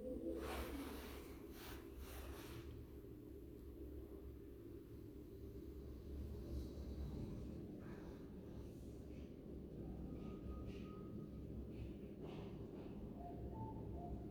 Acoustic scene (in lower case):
elevator